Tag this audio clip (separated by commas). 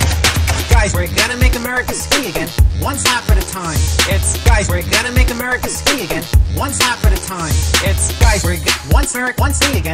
Hip hop music, Music, Speech